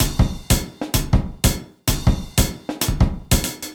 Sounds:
percussion
music
drum kit
musical instrument
drum

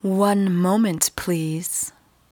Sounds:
woman speaking
human voice
speech

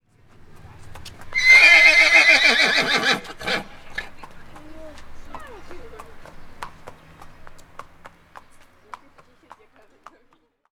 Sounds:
livestock
animal

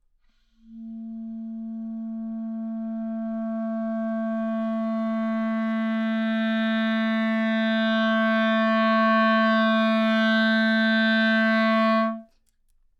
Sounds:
musical instrument
wind instrument
music

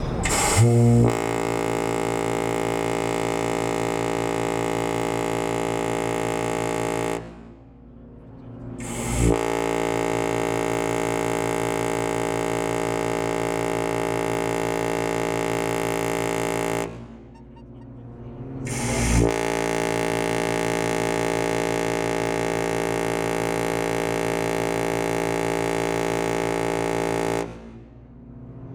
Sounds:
boat
vehicle

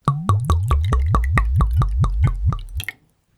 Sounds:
liquid

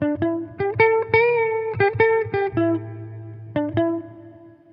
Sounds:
music
musical instrument
plucked string instrument
electric guitar
guitar

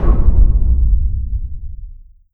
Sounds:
explosion
boom

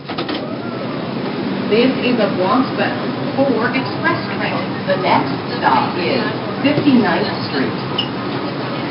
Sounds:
metro
rail transport
vehicle

